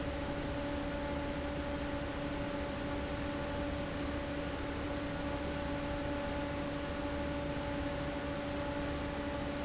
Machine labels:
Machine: fan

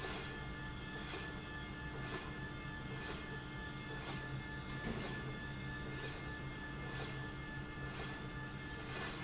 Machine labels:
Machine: slide rail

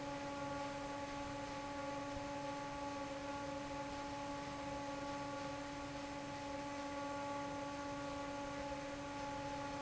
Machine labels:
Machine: fan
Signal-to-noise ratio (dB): 6 dB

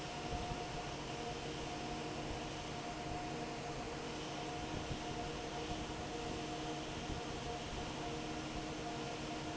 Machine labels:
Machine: fan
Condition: normal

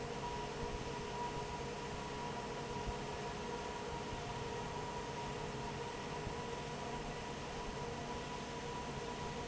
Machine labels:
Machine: fan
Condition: normal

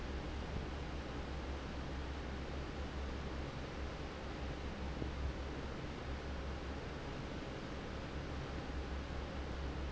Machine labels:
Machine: fan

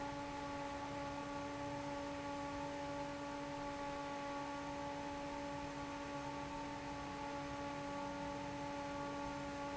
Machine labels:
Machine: fan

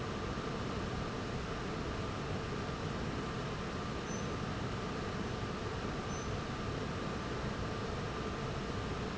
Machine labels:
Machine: fan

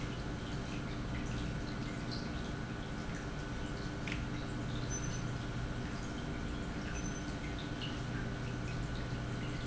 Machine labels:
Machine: pump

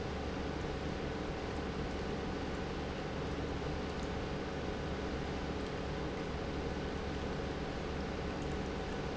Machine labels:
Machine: pump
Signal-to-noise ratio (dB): -6 dB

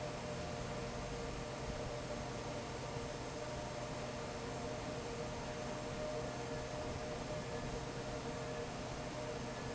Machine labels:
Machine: fan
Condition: normal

